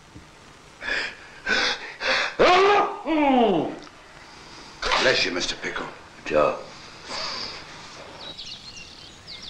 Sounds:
outside, rural or natural, inside a large room or hall, speech

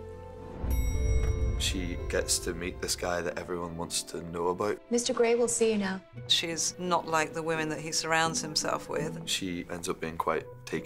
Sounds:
music, speech

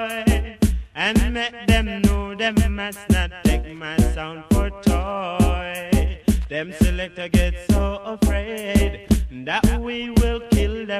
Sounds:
music

